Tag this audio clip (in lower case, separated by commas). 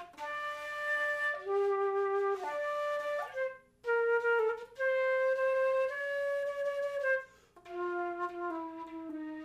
playing cornet